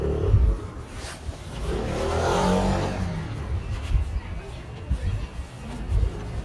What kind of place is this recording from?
residential area